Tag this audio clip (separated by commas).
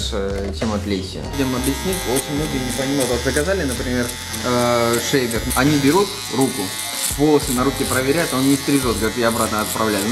electric shaver